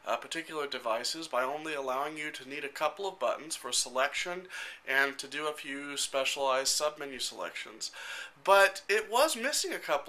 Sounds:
Speech

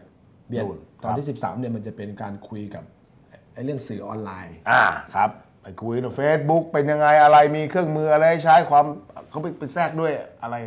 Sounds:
Speech

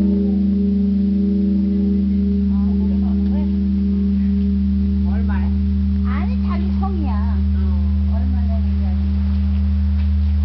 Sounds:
Speech

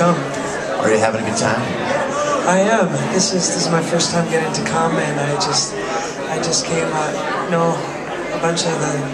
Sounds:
Speech

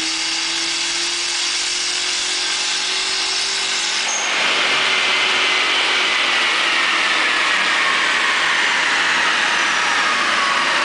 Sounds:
inside a large room or hall, Vehicle, Car

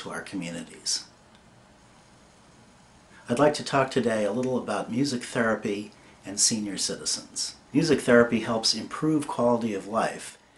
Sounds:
Speech

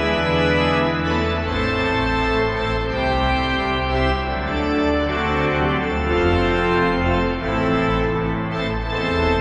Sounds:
playing electronic organ

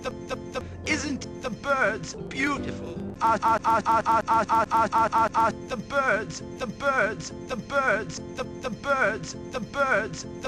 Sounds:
Music, Speech

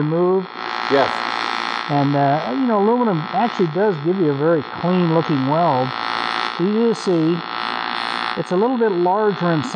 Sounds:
Speech

